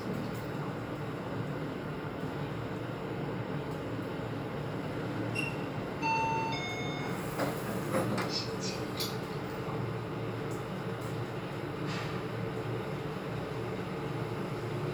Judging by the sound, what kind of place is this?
elevator